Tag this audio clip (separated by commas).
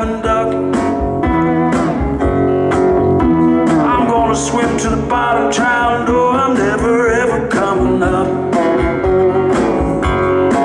Music